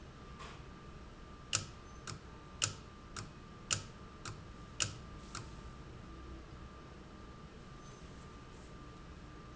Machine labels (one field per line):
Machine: valve